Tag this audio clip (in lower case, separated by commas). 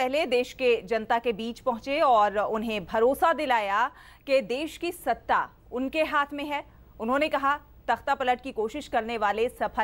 speech